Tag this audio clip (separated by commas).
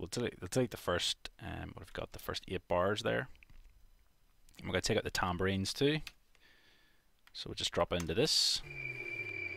Speech